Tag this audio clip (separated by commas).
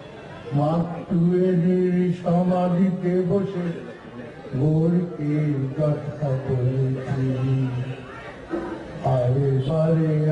Speech, Male singing